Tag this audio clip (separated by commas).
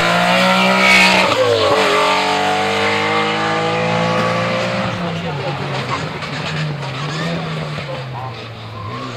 Speech